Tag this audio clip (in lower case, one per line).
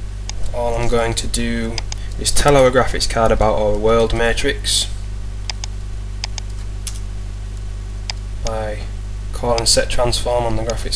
speech